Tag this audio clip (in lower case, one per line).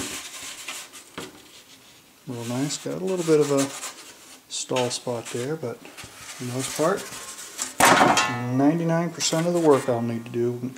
dishes, pots and pans